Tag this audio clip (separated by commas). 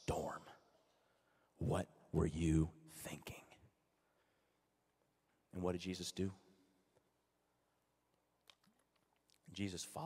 Speech